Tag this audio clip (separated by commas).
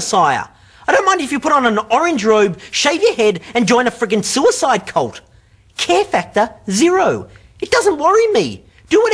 Speech